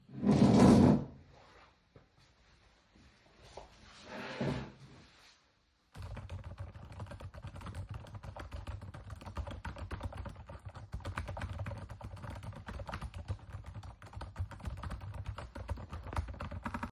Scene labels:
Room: bedroom; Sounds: keyboard typing

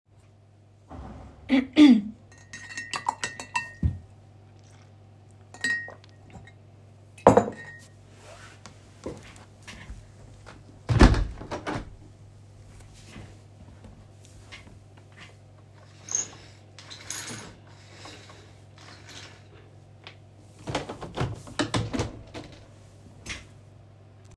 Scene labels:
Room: bedroom; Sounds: cutlery and dishes, footsteps, window (more than once)

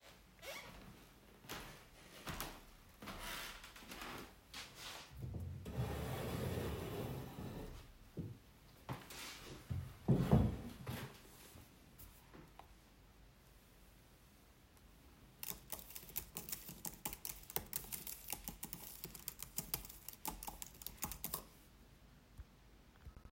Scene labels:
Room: living room; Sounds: footsteps, keyboard typing

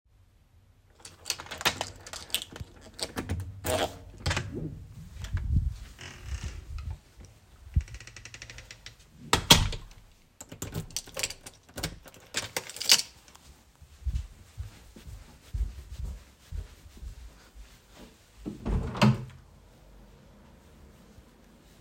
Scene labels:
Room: bedroom; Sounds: keys, door (more than once), footsteps, window

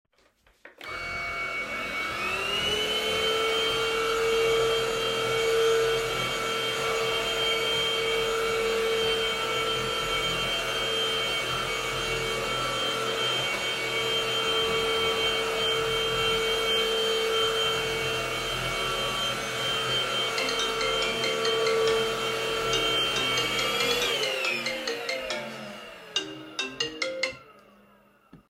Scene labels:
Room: bedroom; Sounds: vacuum cleaner, phone ringing

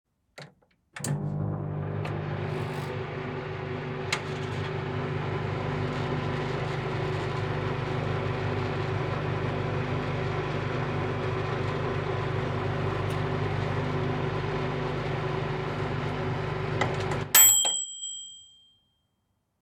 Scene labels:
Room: kitchen; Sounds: microwave

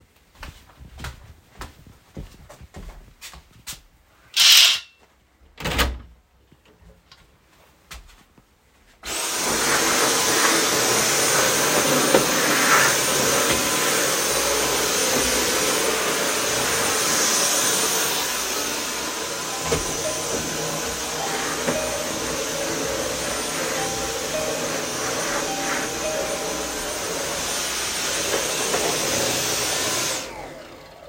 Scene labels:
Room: bedroom; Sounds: footsteps, window (more than once), vacuum cleaner, bell ringing

